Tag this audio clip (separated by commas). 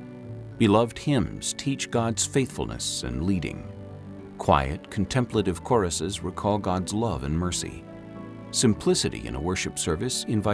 Tender music, Music, Speech